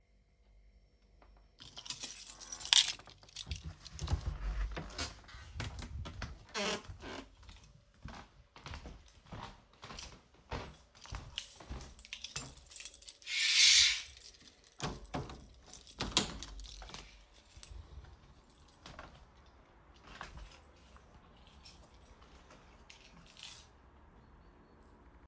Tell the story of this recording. I took my keychain,opened my door and walked across the hallway where i opened the curtains and another door to walk on my balcony.